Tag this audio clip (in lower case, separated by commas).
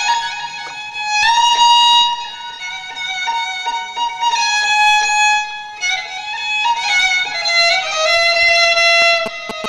musical instrument, fiddle, music